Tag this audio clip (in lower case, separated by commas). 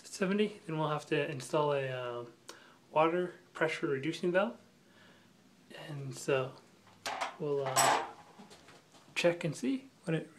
speech, inside a small room